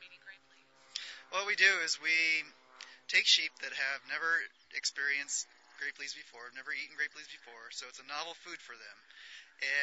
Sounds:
speech

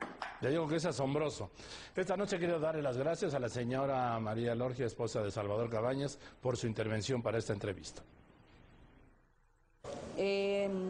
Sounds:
speech

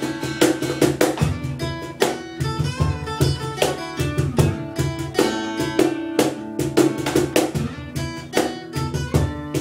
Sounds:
music, flamenco

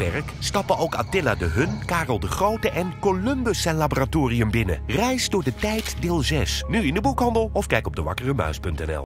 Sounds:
music, speech

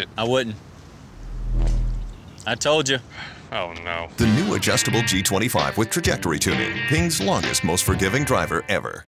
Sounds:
speech, music

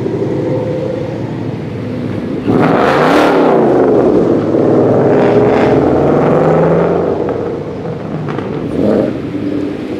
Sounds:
vehicle, outside, rural or natural, car

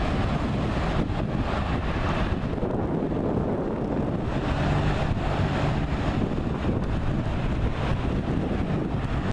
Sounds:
wind, wind noise, wind noise (microphone)

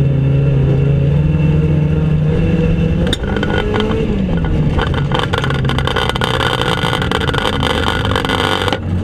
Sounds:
car passing by, vehicle, motor vehicle (road), car

